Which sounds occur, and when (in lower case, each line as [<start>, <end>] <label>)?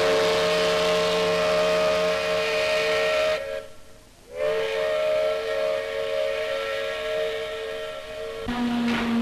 [0.00, 3.67] air horn
[0.00, 9.21] background noise
[4.24, 9.21] air horn